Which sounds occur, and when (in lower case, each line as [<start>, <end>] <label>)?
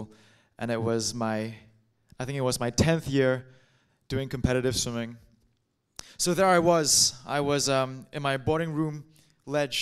[0.00, 0.54] breathing
[0.00, 9.81] background noise
[0.55, 1.73] male speech
[2.02, 2.12] human sounds
[2.15, 3.43] male speech
[3.43, 4.03] breathing
[4.07, 5.55] male speech
[5.25, 5.55] generic impact sounds
[5.94, 6.02] human sounds
[5.98, 6.14] breathing
[6.22, 9.02] male speech
[9.07, 9.32] breathing
[9.45, 9.81] male speech